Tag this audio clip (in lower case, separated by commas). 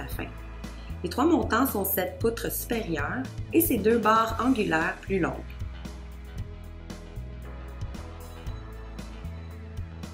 music, speech